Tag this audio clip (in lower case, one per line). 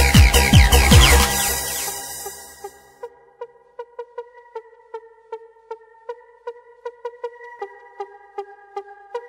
electronic music
music